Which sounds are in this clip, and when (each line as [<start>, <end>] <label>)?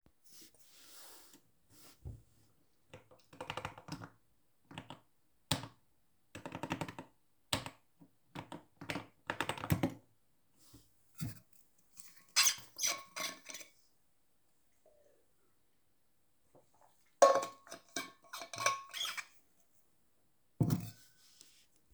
[2.92, 9.97] keyboard typing